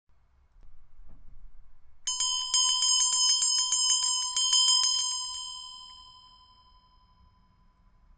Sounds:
bell

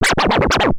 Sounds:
scratching (performance technique), musical instrument, music

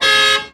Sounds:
vehicle

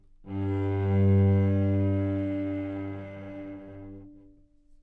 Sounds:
bowed string instrument, musical instrument, music

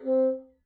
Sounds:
music, woodwind instrument, musical instrument

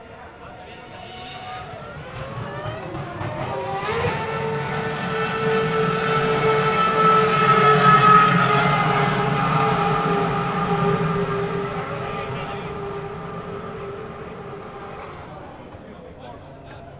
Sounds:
engine, motor vehicle (road), auto racing, accelerating, car, vehicle

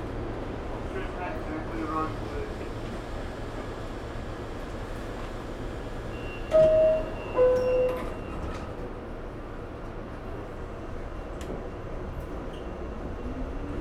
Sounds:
vehicle, metro, rail transport

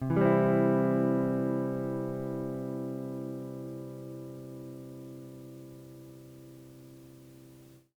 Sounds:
plucked string instrument, guitar, music, musical instrument

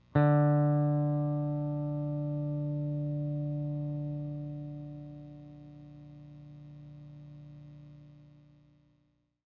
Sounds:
music, musical instrument, electric guitar, plucked string instrument, guitar

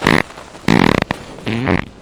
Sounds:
fart

